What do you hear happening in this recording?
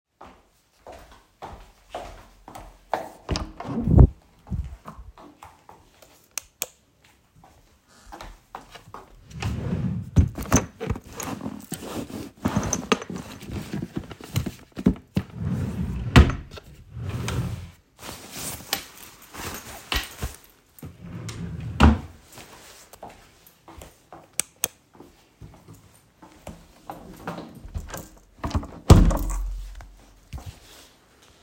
I opened the door of the bedroom, switched on the light and opened a drawer. I did not find my jacket. So I opened another drawer. I took out the jacket, closed the drawer, switched off the light and closed the door.